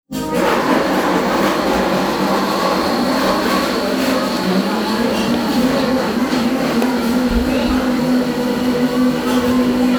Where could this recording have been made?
in a cafe